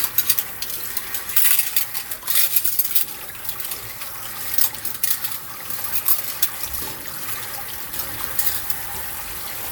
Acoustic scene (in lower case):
kitchen